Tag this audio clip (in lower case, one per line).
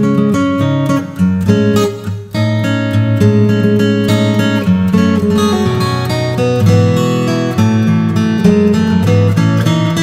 music